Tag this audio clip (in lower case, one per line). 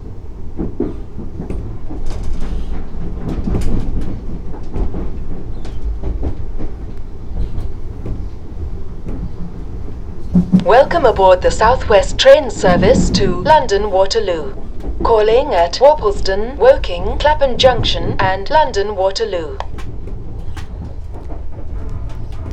vehicle
train
rail transport